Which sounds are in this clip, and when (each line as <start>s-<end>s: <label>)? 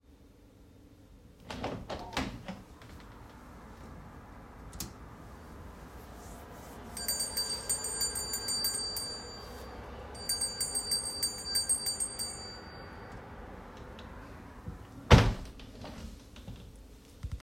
1.4s-2.6s: window
7.0s-9.4s: bell ringing
10.2s-12.7s: bell ringing
15.1s-15.6s: window